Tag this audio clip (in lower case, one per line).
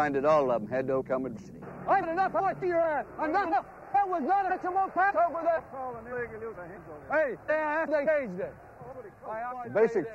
speech